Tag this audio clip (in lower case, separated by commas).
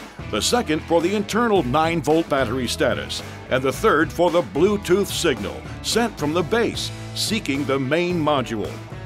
music, speech